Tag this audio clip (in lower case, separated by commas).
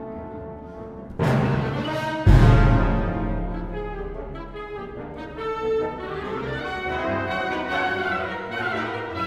playing tympani